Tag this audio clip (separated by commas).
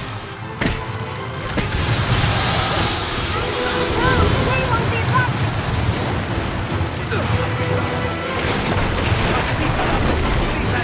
Music, Speech